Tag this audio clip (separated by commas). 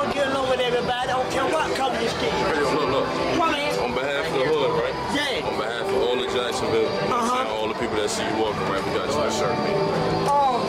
Speech